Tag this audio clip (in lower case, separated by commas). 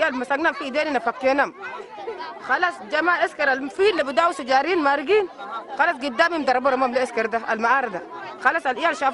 speech